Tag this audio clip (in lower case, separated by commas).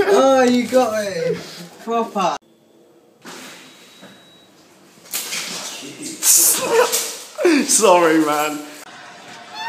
door, speech